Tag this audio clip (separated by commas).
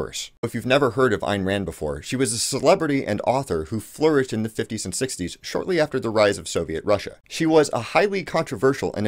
Speech